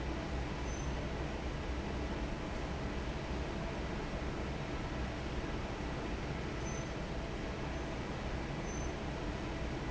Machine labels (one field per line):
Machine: fan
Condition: normal